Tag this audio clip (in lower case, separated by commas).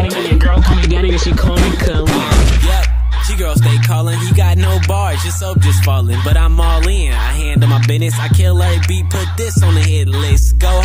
music, dance music